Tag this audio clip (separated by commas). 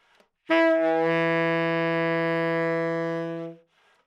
Musical instrument, Music, woodwind instrument